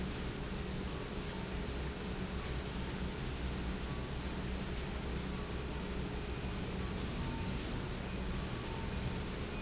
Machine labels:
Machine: pump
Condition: normal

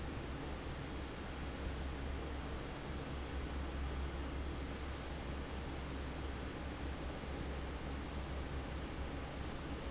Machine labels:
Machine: fan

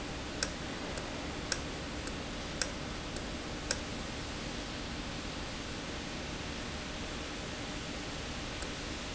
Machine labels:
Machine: valve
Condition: normal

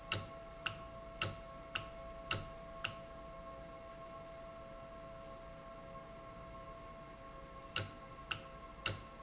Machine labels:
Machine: valve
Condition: normal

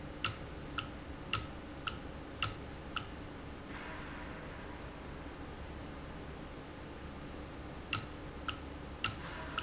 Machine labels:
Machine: valve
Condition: normal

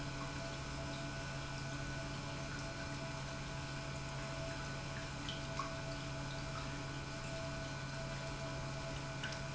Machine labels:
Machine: pump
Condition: normal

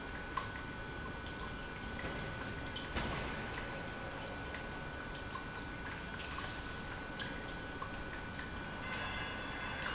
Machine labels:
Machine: pump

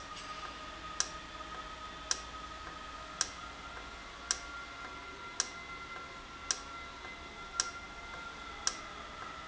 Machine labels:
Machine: valve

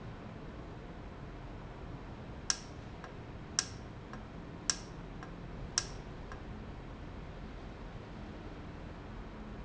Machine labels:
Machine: valve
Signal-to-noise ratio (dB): 0 dB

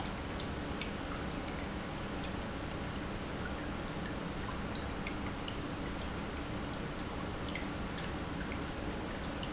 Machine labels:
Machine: pump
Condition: normal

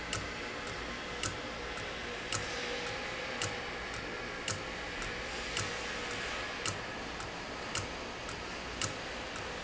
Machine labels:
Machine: valve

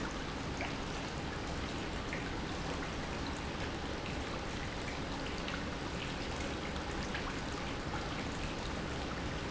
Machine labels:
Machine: pump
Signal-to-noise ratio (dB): -6 dB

